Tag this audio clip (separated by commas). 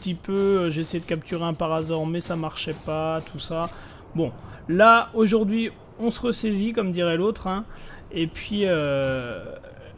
Speech